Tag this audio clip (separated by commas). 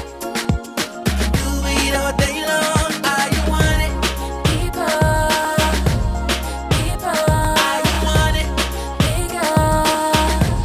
Rhythm and blues, Music